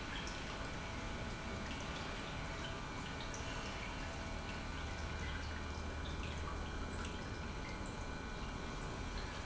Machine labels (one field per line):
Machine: pump